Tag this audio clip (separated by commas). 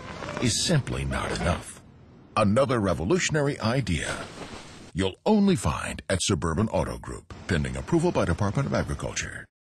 Speech